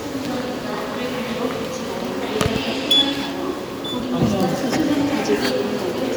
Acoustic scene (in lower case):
subway station